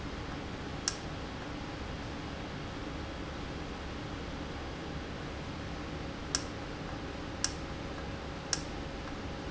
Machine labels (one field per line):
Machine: valve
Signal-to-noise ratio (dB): -6 dB